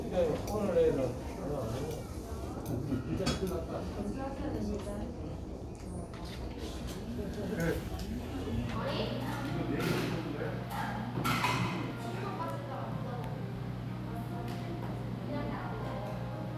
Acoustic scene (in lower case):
crowded indoor space